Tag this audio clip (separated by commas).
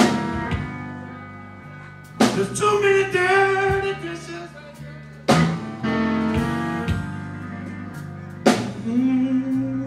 Music